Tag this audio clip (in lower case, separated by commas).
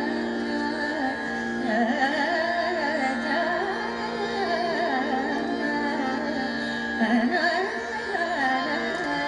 music of asia, carnatic music, classical music, musical instrument, music, singing